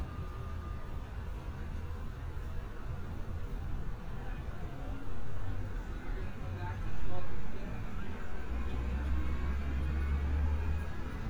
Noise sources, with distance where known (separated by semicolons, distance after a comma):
engine of unclear size